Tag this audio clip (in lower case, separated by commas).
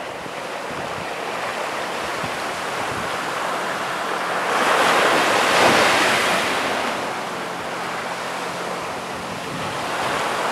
ocean, wind noise (microphone), ocean burbling, surf, wind